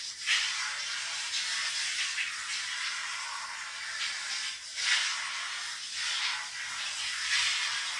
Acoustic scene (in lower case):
restroom